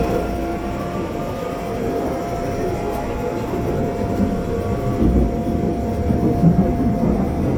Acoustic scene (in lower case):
subway train